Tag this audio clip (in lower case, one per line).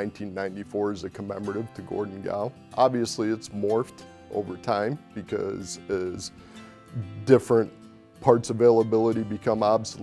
speech
music